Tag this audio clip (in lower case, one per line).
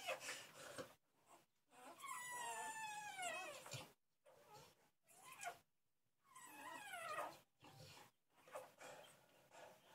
dog
domestic animals
animal